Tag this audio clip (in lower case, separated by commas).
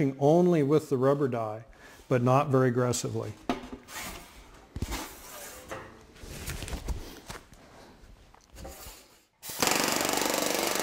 speech